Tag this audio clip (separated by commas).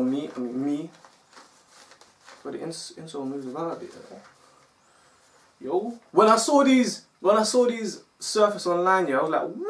Speech, inside a small room